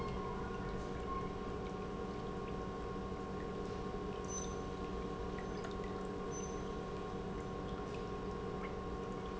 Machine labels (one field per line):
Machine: pump